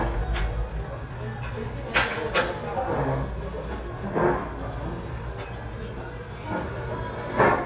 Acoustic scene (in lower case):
restaurant